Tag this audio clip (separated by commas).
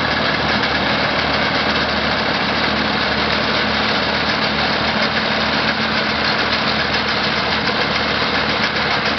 Vehicle